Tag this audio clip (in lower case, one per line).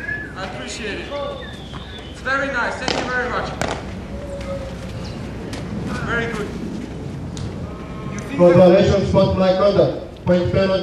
speech